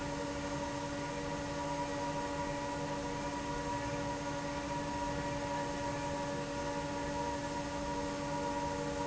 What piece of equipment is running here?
fan